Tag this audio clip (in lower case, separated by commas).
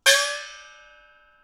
musical instrument, gong, percussion, music